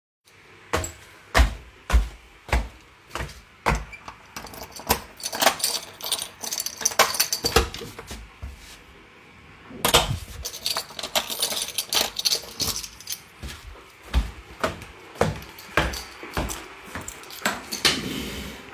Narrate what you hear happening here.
I moved to my door, took my keys unlocked the door. There was chair on my way so i moved it too